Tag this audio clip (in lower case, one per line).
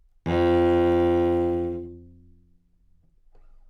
music
musical instrument
bowed string instrument